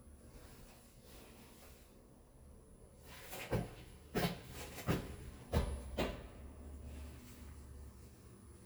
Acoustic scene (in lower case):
elevator